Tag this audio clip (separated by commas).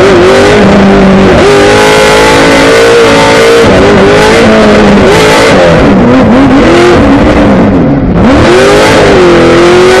Motor vehicle (road), Vehicle, Car